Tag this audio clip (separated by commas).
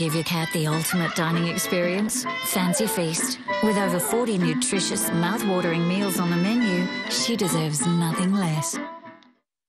Bird, Music, Speech